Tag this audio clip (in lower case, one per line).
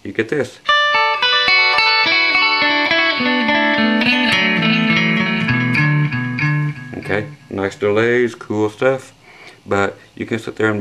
plucked string instrument
guitar
speech
music
musical instrument